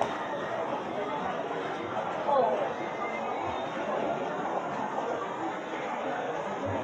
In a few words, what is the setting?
crowded indoor space